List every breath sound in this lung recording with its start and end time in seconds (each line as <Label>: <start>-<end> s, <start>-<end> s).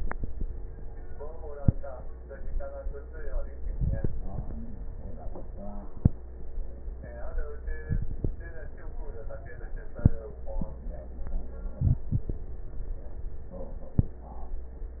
Inhalation: 3.61-4.29 s, 7.86-8.36 s, 11.80-12.41 s
Crackles: 3.61-4.29 s, 7.86-8.36 s, 11.80-12.41 s